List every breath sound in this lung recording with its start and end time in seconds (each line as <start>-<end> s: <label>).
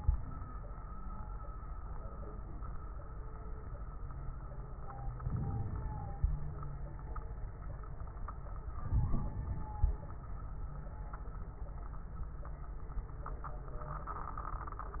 5.20-6.45 s: inhalation
5.20-6.45 s: crackles
8.81-10.06 s: inhalation
8.81-10.06 s: crackles